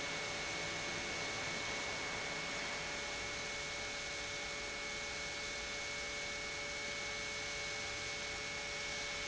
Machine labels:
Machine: pump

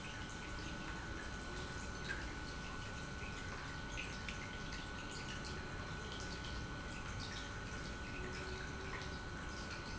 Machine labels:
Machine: pump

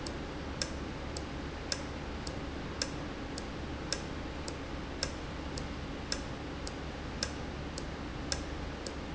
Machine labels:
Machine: valve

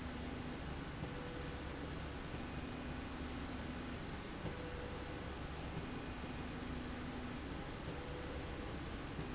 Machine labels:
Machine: slide rail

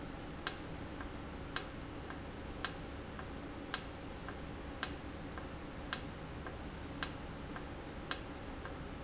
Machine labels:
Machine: valve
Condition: normal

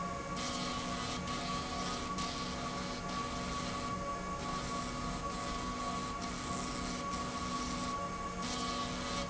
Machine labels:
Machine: slide rail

